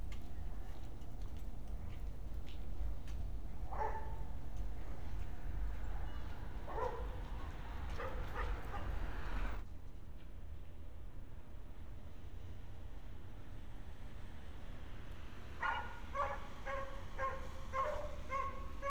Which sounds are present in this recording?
dog barking or whining